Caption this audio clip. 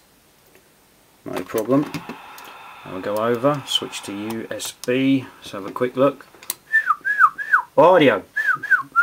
White noise followed by a man speaking together with tapping and then whistling